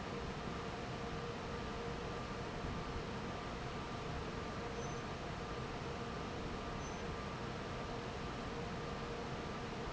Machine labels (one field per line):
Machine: fan